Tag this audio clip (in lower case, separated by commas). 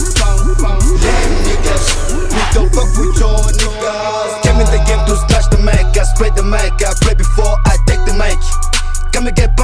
dance music, music